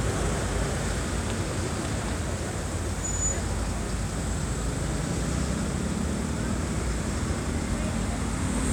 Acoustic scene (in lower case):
street